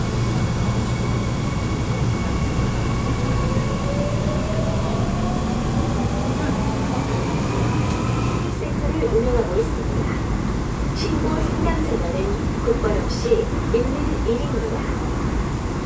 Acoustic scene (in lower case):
subway train